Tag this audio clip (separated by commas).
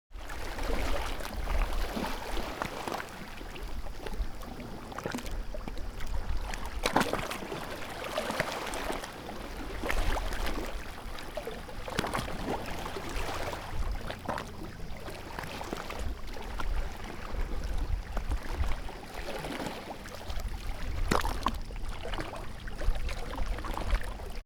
Water, Ocean, Waves